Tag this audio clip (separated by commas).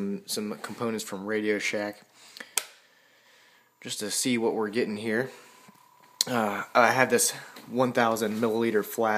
Speech